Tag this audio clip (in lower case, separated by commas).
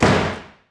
home sounds, slam, door